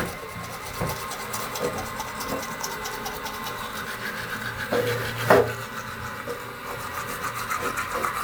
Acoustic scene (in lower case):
restroom